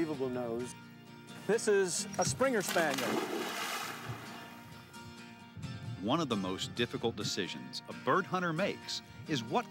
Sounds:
speech
music

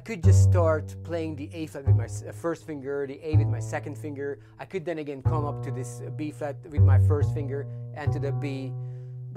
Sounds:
cello
double bass
pizzicato
bowed string instrument

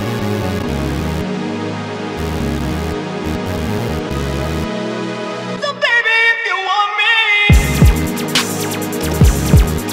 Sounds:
singing

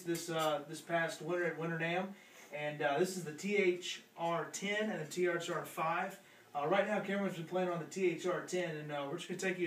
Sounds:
speech

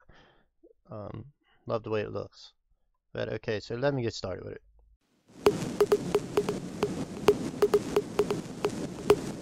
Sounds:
music
speech

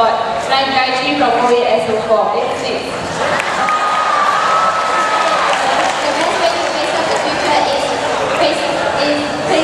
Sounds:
inside a large room or hall
speech

